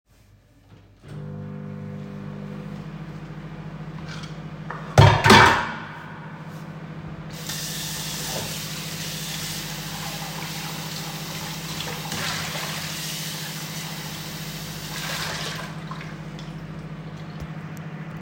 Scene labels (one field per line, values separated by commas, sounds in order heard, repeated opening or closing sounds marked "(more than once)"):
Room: kitchen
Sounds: microwave, cutlery and dishes, running water